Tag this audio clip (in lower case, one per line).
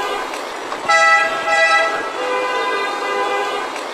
vehicle
car horn
roadway noise
motor vehicle (road)
car
alarm